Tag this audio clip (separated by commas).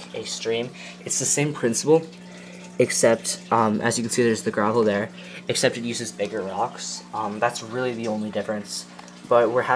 Speech